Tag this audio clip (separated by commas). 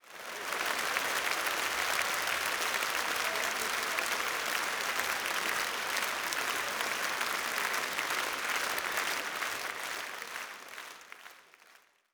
Applause, Human group actions